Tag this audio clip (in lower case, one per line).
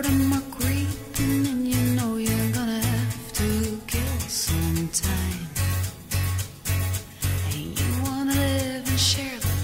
music